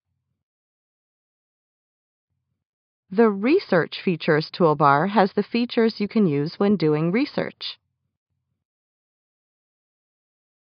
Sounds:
Speech

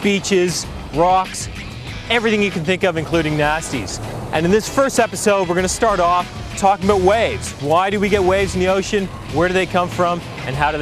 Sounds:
Music, Speech

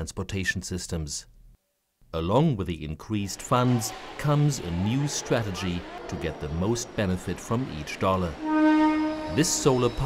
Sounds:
Speech

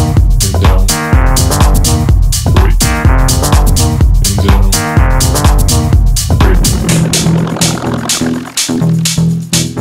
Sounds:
House music, Sampler, Music

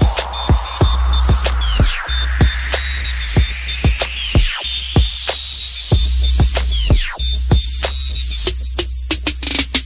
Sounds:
Music

